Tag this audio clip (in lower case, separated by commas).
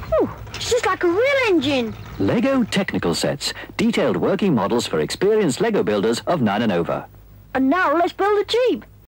speech